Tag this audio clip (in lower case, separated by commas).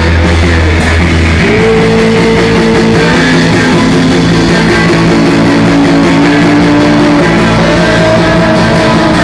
music